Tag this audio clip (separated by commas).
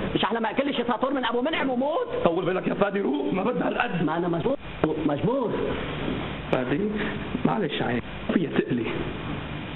Speech